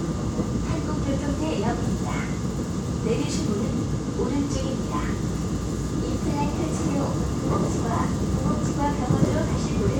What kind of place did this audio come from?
subway train